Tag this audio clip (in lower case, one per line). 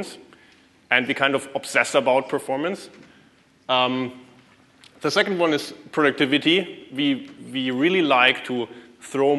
speech